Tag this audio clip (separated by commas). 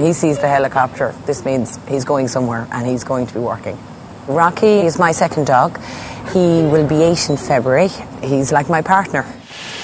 Speech